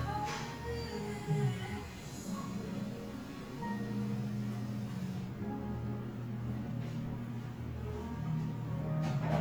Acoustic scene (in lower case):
cafe